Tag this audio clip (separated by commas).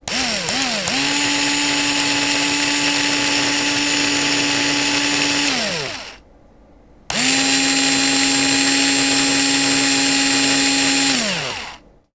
Drill, Power tool, Tools